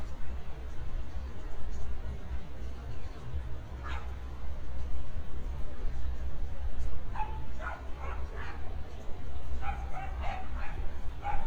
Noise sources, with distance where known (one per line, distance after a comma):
dog barking or whining, far